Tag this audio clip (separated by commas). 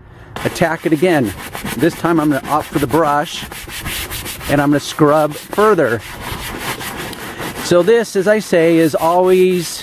Speech